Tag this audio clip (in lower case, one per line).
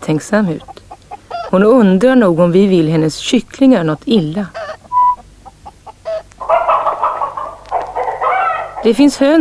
rooster
speech
livestock